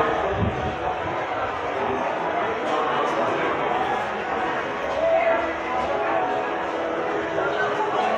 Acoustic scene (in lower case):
subway station